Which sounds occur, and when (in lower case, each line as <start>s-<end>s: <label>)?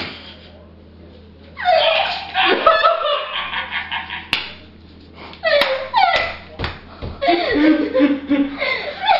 0.0s-9.1s: background noise
1.5s-2.8s: dog
2.5s-4.5s: laughter
4.2s-4.7s: generic impact sounds
5.4s-6.4s: generic impact sounds
5.4s-6.8s: laughter
7.2s-9.1s: laughter